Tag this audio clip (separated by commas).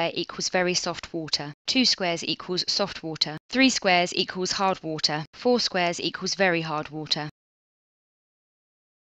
Speech